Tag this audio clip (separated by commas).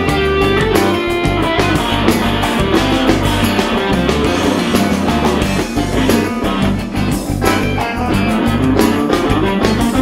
Musical instrument, Electric guitar, Music, playing electric guitar